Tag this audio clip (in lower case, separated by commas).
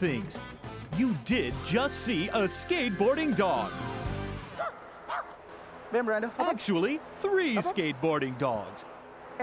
pets, music, animal, bow-wow, speech, dog